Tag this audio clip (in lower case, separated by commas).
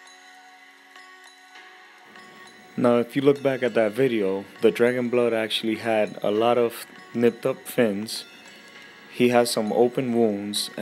speech